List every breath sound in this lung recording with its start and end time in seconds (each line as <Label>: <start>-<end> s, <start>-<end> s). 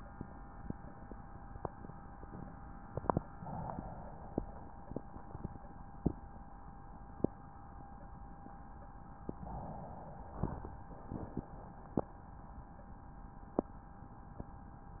Inhalation: 3.42-4.43 s, 9.36-10.73 s